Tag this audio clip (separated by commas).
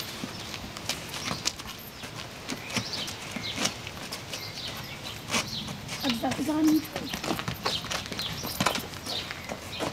Speech